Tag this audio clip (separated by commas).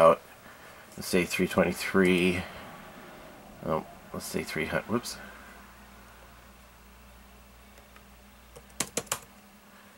Computer keyboard, Speech